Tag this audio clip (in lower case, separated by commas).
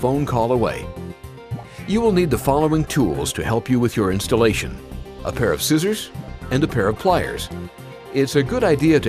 music, speech